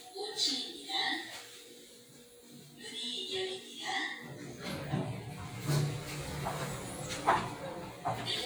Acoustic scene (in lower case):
elevator